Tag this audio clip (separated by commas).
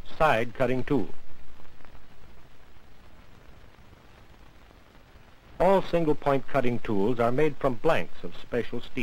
Speech